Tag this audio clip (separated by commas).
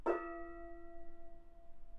Musical instrument, Music, Percussion, Gong